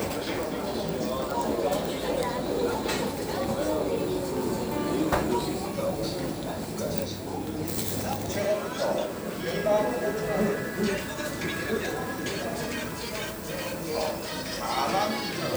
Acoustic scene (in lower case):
crowded indoor space